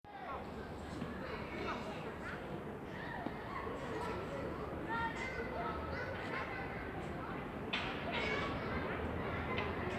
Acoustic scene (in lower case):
residential area